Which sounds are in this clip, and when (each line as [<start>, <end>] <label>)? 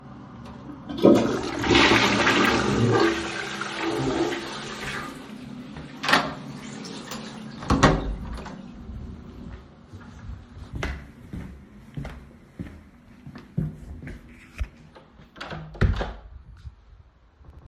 [0.89, 5.32] toilet flushing
[5.95, 6.42] light switch
[7.60, 8.71] door
[10.48, 15.29] footsteps